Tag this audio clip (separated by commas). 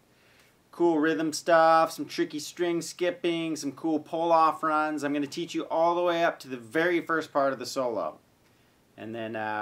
Speech